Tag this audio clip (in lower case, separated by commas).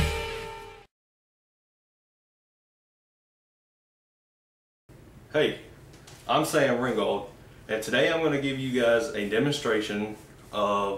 speech